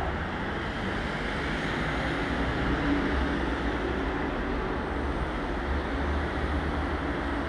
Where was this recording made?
on a street